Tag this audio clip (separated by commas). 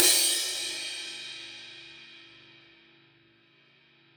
Cymbal, Percussion, Crash cymbal, Musical instrument, Music